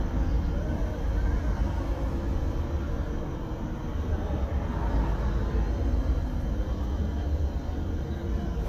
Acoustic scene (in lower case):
car